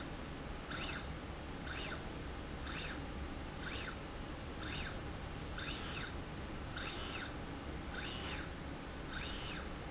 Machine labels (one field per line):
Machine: slide rail